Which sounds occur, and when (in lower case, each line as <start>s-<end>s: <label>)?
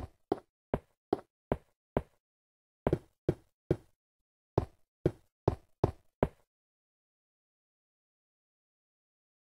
0.0s-0.2s: knock
0.3s-0.5s: knock
0.7s-0.9s: knock
1.1s-1.2s: knock
1.5s-1.7s: knock
2.0s-2.2s: knock
2.8s-3.1s: knock
3.3s-3.4s: knock
3.7s-3.9s: knock
4.5s-4.8s: knock
5.0s-5.2s: knock
5.4s-5.7s: knock
5.8s-6.0s: knock
6.2s-6.4s: knock